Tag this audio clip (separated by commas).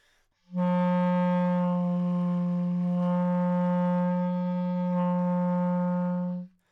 Musical instrument, Music, Wind instrument